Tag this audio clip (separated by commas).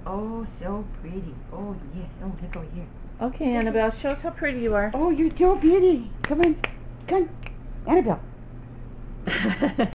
Speech